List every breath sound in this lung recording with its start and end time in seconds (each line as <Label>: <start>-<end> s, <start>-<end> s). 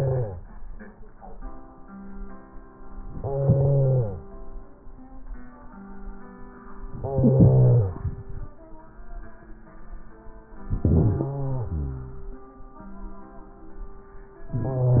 Inhalation: 3.12-4.20 s, 6.97-8.54 s, 10.52-12.41 s